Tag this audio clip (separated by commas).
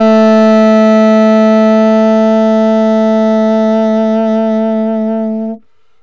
Musical instrument, woodwind instrument, Music